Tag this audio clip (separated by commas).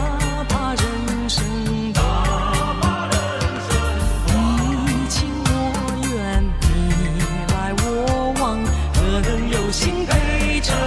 Music